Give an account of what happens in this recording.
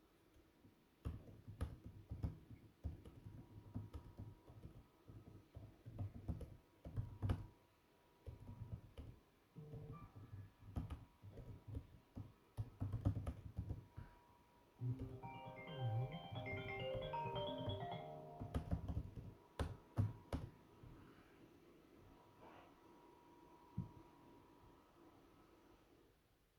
I started the vacuum robot and started typing on my Macbook. Meanwhile I received a notification and a call.